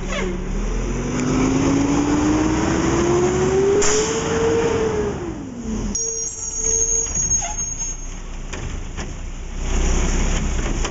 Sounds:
vehicle, truck

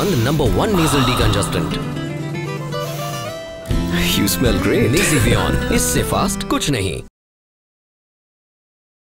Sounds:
music, speech

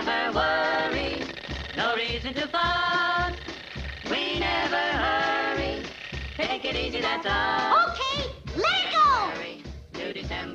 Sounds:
music, speech

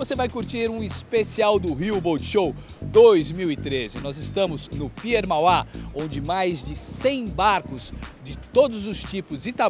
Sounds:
speech, music

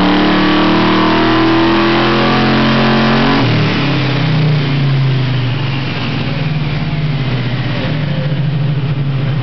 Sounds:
speech

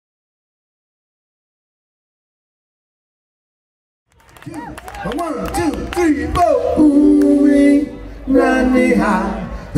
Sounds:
singing, speech

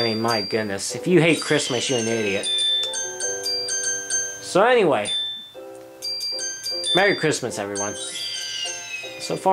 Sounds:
speech, music

